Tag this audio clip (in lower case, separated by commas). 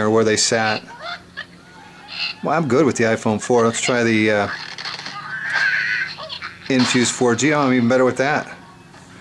inside a small room, speech